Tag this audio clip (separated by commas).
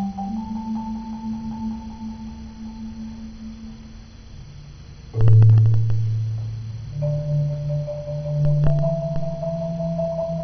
Music